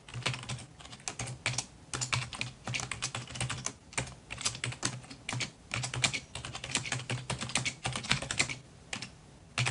A person is typing